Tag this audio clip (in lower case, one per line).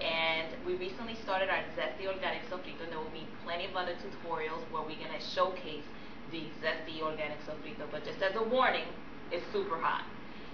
speech